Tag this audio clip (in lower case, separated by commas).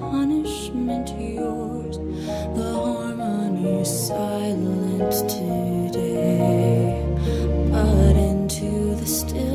lullaby, music